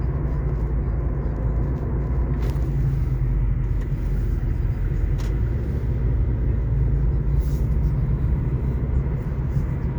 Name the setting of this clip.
car